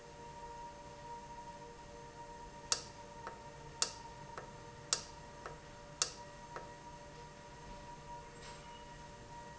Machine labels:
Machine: valve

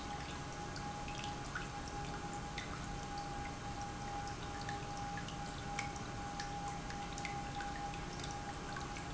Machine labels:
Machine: pump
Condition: normal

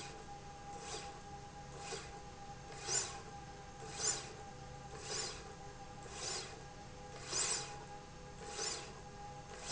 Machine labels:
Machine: slide rail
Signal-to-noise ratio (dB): 6 dB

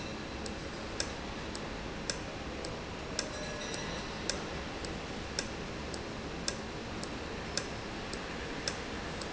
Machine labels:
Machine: valve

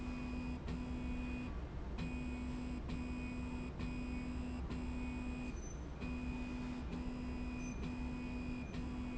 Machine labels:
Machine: slide rail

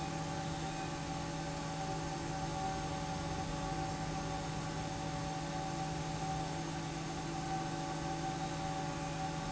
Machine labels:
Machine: fan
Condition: normal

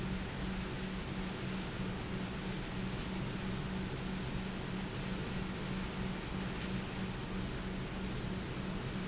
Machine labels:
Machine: pump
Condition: normal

